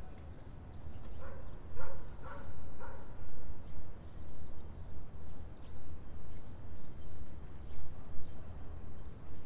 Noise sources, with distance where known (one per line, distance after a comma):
dog barking or whining, far